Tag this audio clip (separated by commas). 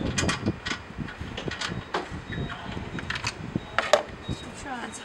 Speech